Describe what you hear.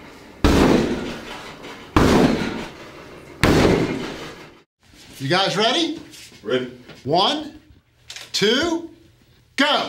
A door is banged on several times then a man speaks